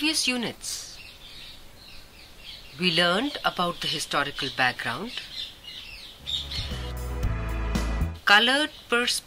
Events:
0.0s-9.2s: background noise
6.5s-8.2s: music
8.3s-9.2s: bird call

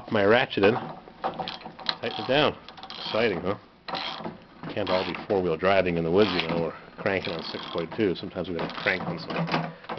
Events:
0.0s-0.1s: generic impact sounds
0.0s-0.6s: man speaking
0.0s-9.9s: mechanisms
0.3s-0.8s: generic impact sounds
1.0s-2.0s: generic impact sounds
1.8s-2.3s: man speaking
2.4s-3.0s: generic impact sounds
2.8s-3.3s: man speaking
3.1s-3.3s: generic impact sounds
3.6s-4.2s: generic impact sounds
4.3s-5.2s: generic impact sounds
4.4s-6.4s: man speaking
5.5s-6.5s: generic impact sounds
6.6s-8.8s: generic impact sounds
6.7s-9.5s: man speaking
9.0s-9.9s: generic impact sounds
9.6s-9.9s: man speaking

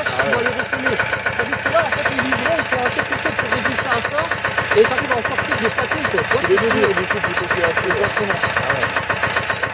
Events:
0.0s-0.9s: man speaking
0.0s-9.7s: lawn mower
1.4s-4.3s: man speaking
4.7s-8.9s: man speaking

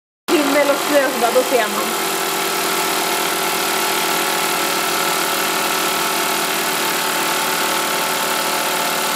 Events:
0.3s-9.1s: mechanisms
0.3s-2.0s: female speech

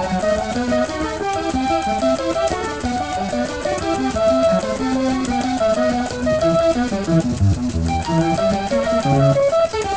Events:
0.0s-9.9s: mechanisms
0.0s-9.9s: music

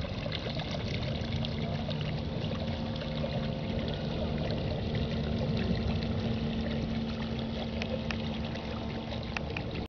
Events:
0.0s-9.8s: mechanisms
0.0s-9.8s: ocean
1.6s-1.8s: speech
3.1s-3.4s: speech
4.1s-4.3s: speech

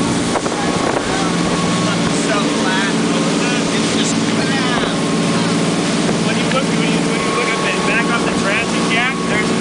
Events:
0.0s-9.6s: speedboat
0.0s-9.6s: water
1.8s-5.0s: male speech
6.3s-9.6s: male speech

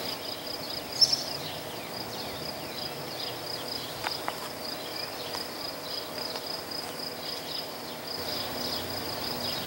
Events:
0.0s-9.6s: bird call
0.0s-9.6s: rail transport
6.3s-6.4s: tap

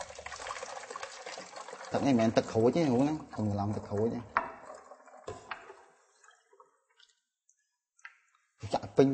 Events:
0.0s-5.8s: fill (with liquid)
0.0s-7.2s: trickle
0.0s-9.1s: background noise
1.9s-3.2s: male speech
3.4s-4.3s: male speech
4.3s-4.5s: tap
5.3s-5.4s: generic impact sounds
5.5s-5.6s: generic impact sounds
7.0s-7.2s: clicking
8.0s-8.1s: generic impact sounds
8.4s-8.5s: clicking
8.6s-9.1s: male speech

